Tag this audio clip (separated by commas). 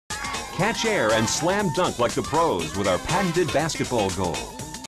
Speech, Music